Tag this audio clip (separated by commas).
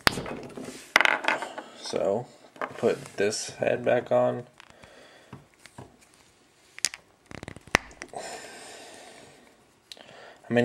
Speech, inside a small room